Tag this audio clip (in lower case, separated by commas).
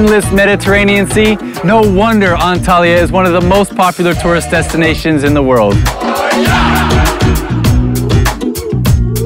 speech, music